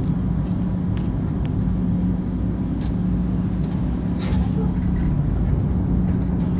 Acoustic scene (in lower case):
bus